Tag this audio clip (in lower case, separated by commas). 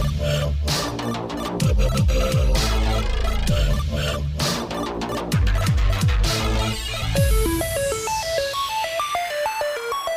soundtrack music, dance music, music